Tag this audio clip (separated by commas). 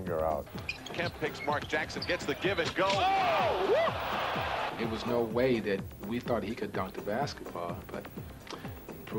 inside a large room or hall, Basketball bounce, Speech, Music